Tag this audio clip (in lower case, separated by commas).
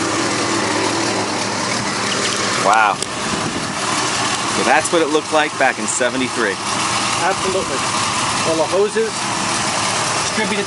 outside, urban or man-made, speech, vehicle, car